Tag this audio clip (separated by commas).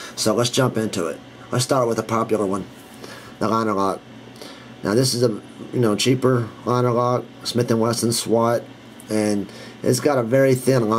Speech